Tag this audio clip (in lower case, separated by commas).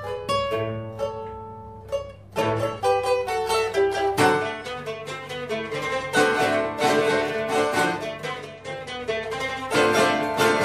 musical instrument, mandolin, music, zither